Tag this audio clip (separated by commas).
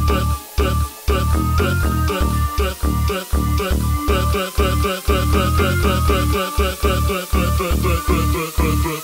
Music